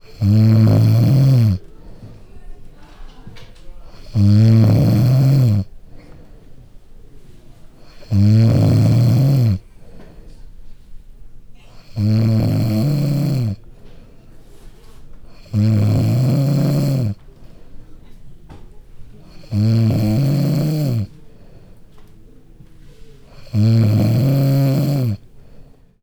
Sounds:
Breathing, Respiratory sounds

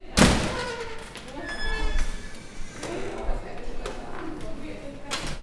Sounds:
Domestic sounds, Slam, Door

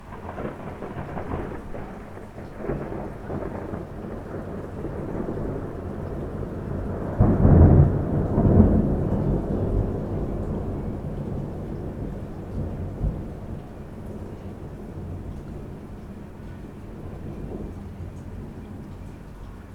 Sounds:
Thunderstorm, Thunder

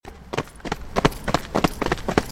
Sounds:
Run

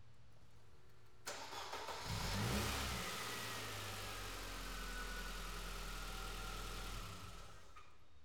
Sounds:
Motor vehicle (road), Vehicle, Car, Engine starting, Engine

